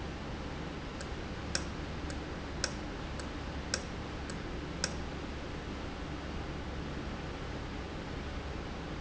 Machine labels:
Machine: valve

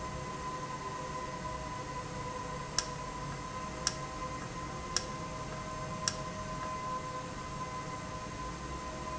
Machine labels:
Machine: valve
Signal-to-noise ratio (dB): -6 dB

